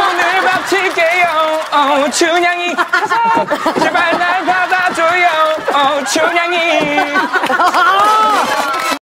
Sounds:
male singing

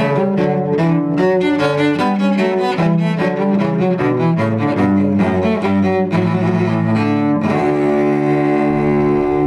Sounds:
cello, playing cello, double bass, bowed string instrument

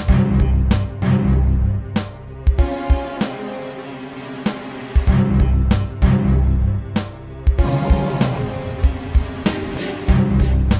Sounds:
musical instrument, music

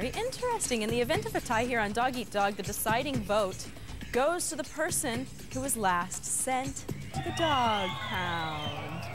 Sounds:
speech, music

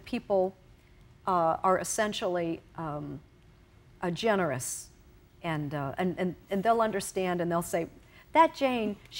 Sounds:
speech, inside a small room

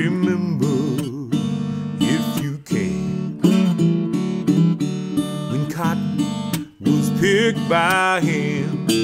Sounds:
electric guitar, musical instrument, acoustic guitar, plucked string instrument, music, strum, guitar

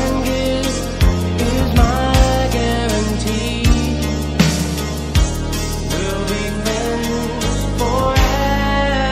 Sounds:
soul music

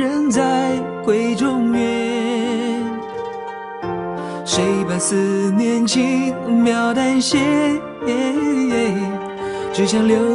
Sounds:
music

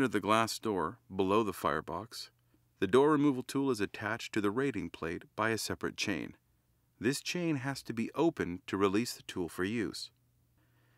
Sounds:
speech

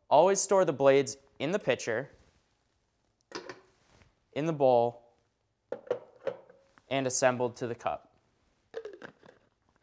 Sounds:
speech

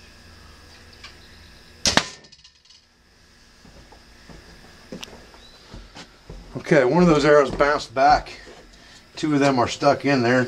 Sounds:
arrow

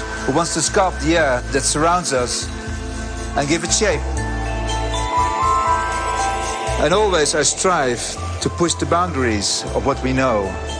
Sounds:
music, speech

